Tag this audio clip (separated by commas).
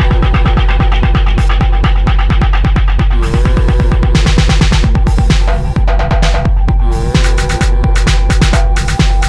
Electronic music, Music, Techno